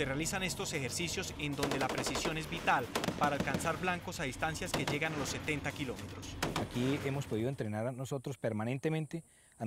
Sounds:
gunfire, Machine gun

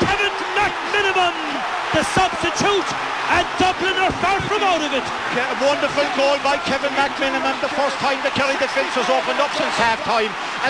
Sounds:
Speech

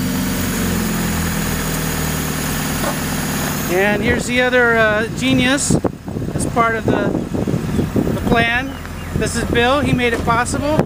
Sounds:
Vehicle, Car, Speech

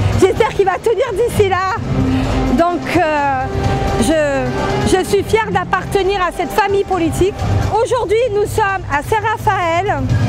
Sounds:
Speech

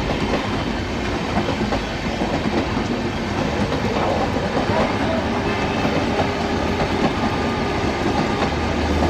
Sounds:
train horning

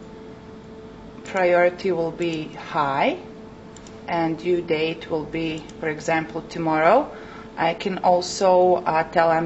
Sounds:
Speech

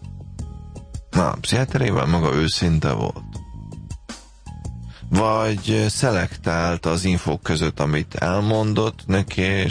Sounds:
Music, Speech

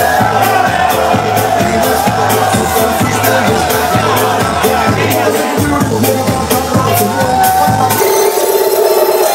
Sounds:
Music, Speech, Rattle

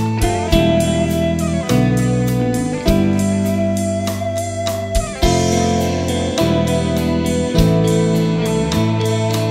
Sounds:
Music, slide guitar

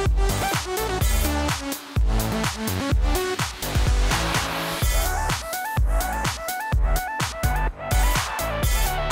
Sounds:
Music

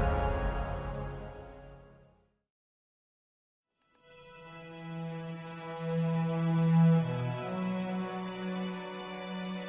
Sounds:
Scary music, Music

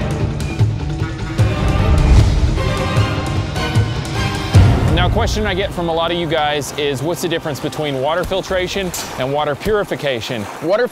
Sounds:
Speech, Music

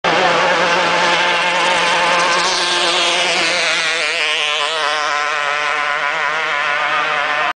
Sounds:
Vehicle, Motorboat

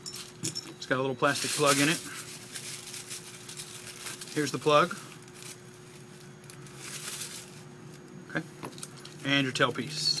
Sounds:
Speech

